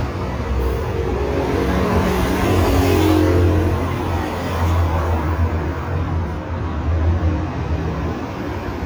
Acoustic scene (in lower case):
street